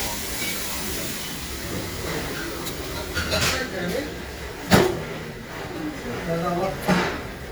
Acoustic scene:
restaurant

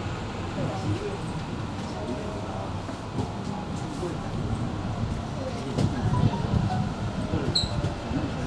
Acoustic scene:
subway train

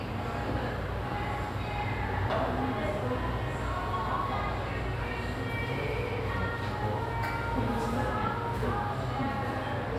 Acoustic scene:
cafe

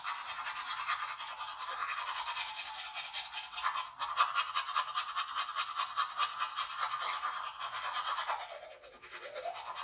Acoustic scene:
restroom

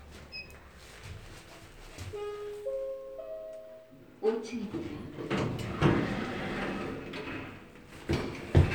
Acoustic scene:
elevator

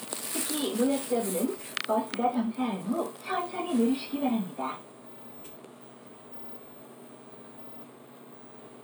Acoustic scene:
bus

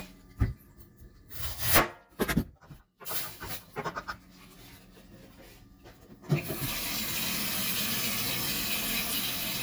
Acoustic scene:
kitchen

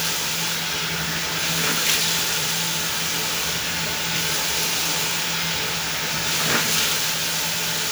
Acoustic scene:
restroom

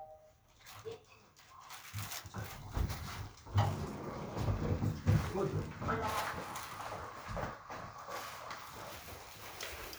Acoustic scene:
elevator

